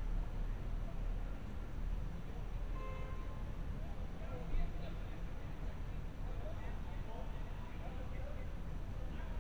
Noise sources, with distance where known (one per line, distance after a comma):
car horn, far
unidentified human voice, far